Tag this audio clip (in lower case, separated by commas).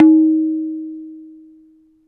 musical instrument, percussion, drum, tabla, music